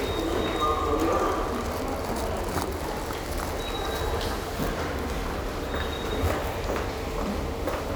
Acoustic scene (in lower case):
subway station